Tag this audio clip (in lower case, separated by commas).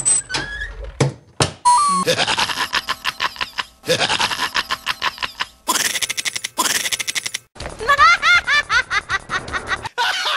music, laughter